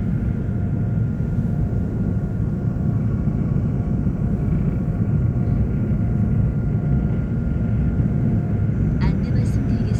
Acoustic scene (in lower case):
subway train